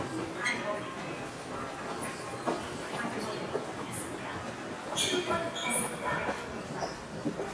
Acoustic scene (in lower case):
subway station